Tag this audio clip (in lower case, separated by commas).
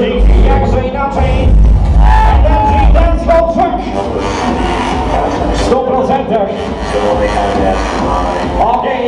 speech, music